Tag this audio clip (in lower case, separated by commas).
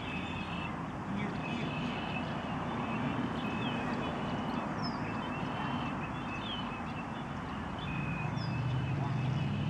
speech, animal, pets